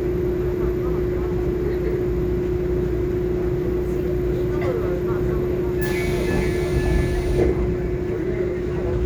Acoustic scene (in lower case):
subway train